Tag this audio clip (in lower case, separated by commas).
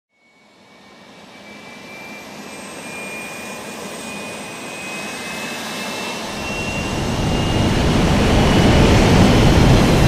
vehicle, aircraft